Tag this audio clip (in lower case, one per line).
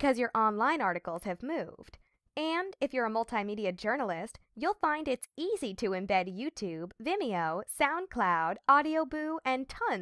speech